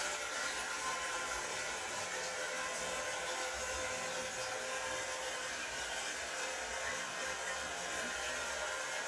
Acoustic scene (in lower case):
restroom